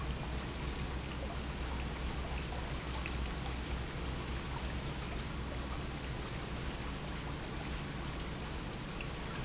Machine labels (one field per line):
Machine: pump